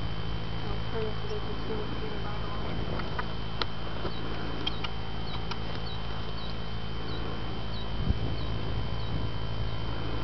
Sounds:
Speech

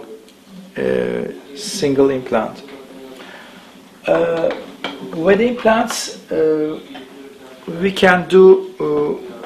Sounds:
Speech

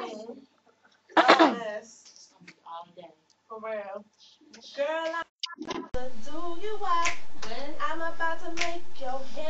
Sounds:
Speech

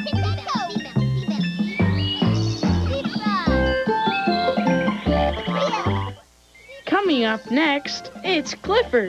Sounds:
Speech, Music

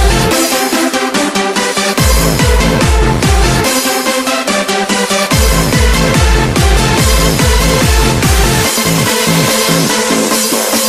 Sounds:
Electronic dance music

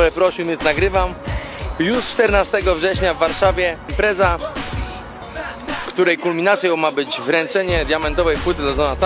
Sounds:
Speech, Music

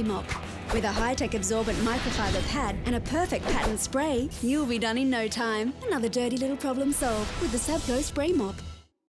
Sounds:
Spray, Speech, Music

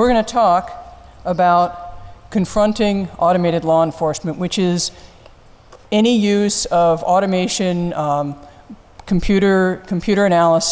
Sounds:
Speech

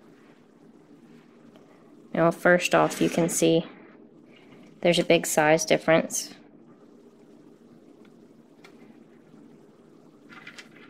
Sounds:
Speech, inside a small room

